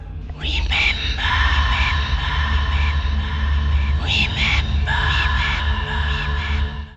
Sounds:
Whispering, Human voice

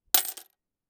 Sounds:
Coin (dropping), home sounds

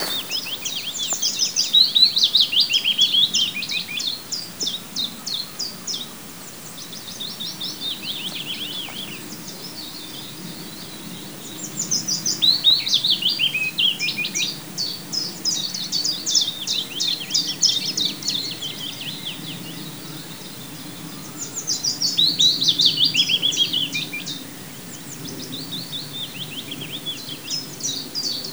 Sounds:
Animal, bird song, Bird, Wild animals

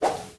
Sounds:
swish

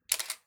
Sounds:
Camera, Mechanisms

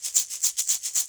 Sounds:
Musical instrument, Percussion, Music, Rattle (instrument)

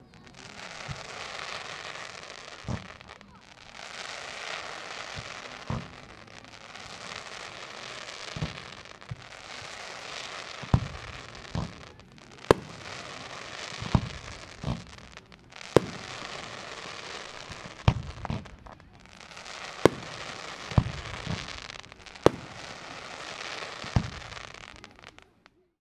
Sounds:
Explosion, Fireworks

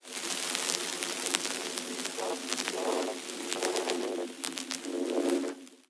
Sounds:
Crackle

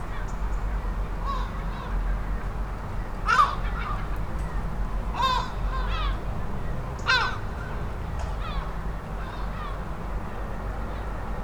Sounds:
Wild animals, Gull, Bird, Animal

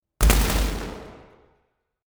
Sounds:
Boom, Explosion

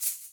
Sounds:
Music, Musical instrument, Rattle (instrument), Percussion

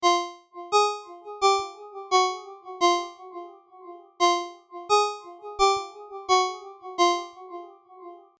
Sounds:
Alarm, Telephone, Ringtone

